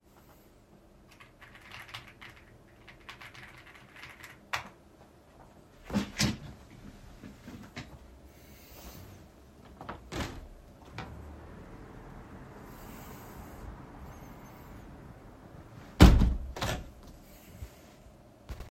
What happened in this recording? I was typing on my keyboard, stood up, and pushed the chair back. Finally, I opened the window for few seconds and closed it again.